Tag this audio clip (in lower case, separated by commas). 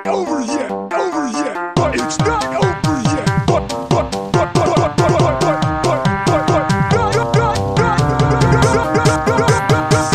techno, music, electronic music